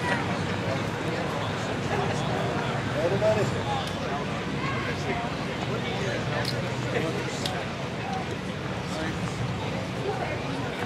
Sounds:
Speech

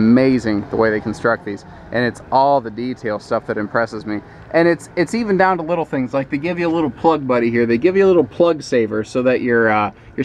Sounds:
Speech

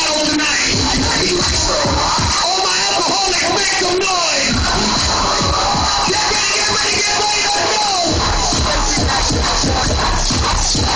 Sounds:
Music, Echo, Speech

